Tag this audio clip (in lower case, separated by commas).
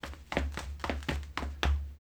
run